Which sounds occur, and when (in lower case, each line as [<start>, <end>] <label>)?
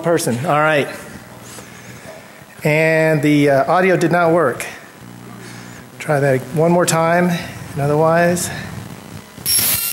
[0.00, 0.92] man speaking
[0.00, 9.92] mechanisms
[1.56, 2.49] breathing
[2.00, 2.20] brief tone
[2.56, 4.71] man speaking
[5.33, 5.85] breathing
[5.98, 7.34] man speaking
[7.38, 7.70] breathing
[7.71, 8.63] man speaking
[8.40, 8.78] breathing
[9.42, 9.92] brief tone